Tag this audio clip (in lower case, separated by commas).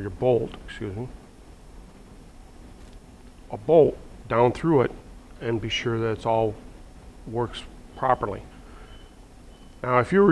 speech